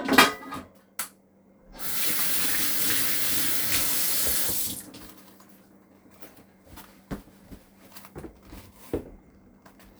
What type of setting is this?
kitchen